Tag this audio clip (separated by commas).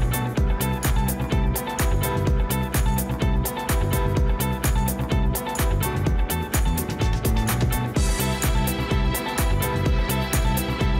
Music